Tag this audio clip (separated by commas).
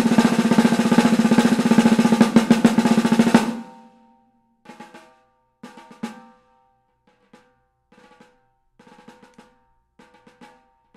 playing snare drum